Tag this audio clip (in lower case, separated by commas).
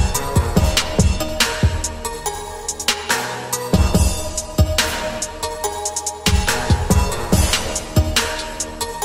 hip hop music, music